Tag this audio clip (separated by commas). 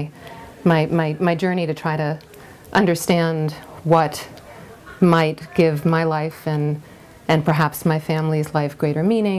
woman speaking